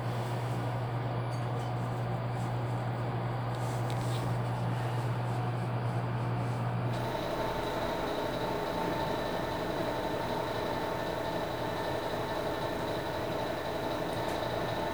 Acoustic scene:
elevator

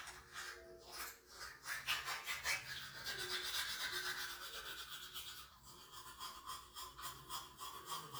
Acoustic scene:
restroom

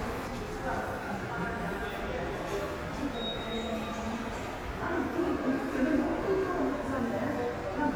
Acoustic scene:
subway station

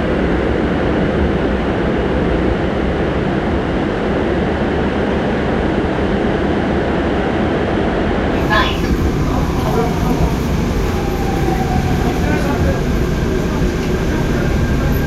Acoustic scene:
subway train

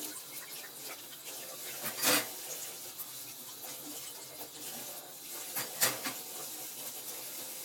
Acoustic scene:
kitchen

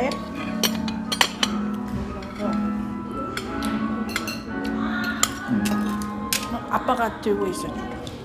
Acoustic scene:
restaurant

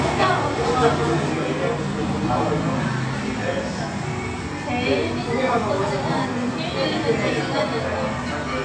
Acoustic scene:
cafe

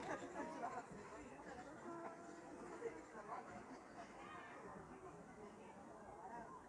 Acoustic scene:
park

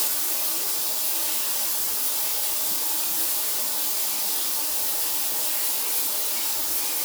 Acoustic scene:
restroom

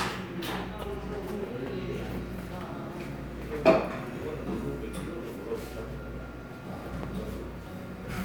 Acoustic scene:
cafe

